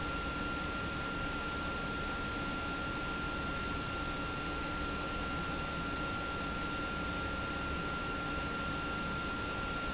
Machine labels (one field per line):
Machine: pump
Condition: abnormal